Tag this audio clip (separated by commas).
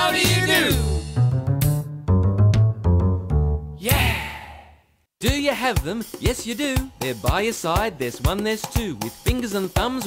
Music, Speech